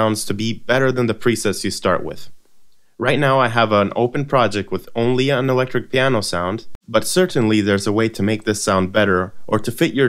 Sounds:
speech

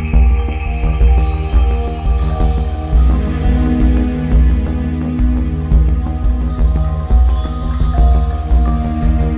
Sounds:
music

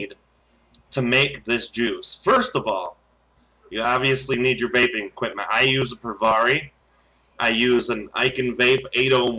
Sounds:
speech

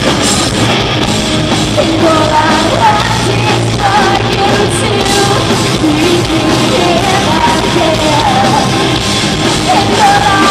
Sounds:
music

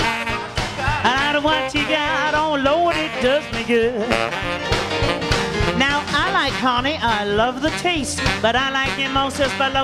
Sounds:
happy music
exciting music
music
funk
blues

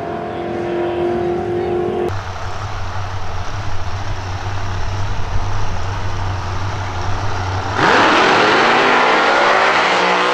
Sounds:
outside, urban or man-made
car
race car
vehicle

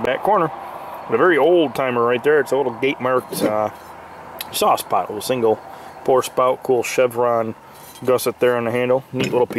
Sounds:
speech
outside, rural or natural

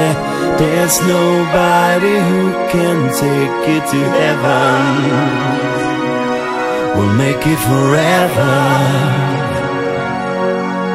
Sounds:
theme music

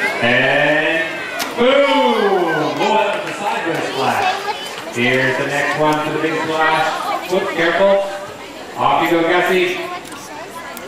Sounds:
water
slosh
speech

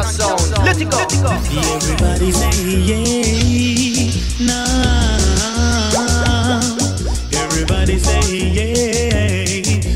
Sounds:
music

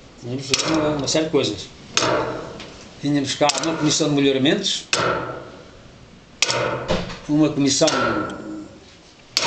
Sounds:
clock
speech
tick
tick-tock

